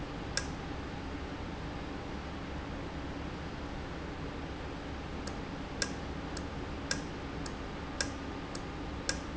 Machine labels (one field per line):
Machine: valve